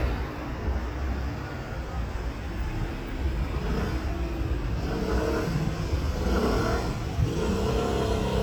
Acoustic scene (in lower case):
street